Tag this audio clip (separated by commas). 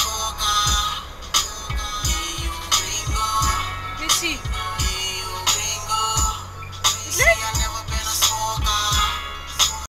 Music, Speech, Vehicle, Car